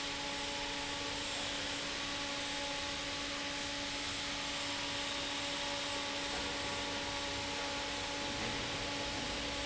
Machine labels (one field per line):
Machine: fan